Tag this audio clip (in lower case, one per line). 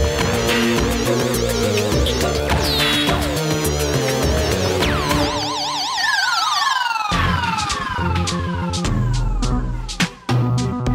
video game music
music